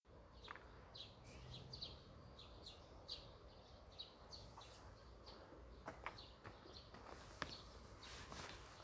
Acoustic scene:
park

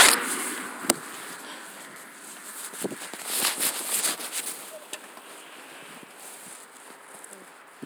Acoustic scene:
street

